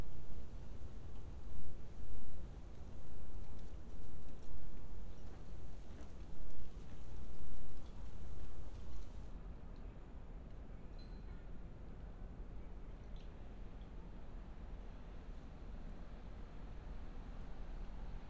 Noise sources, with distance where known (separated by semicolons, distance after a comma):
background noise